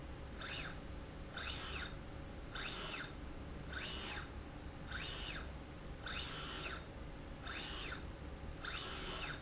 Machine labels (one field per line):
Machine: slide rail